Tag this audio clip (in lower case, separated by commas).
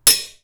domestic sounds, cutlery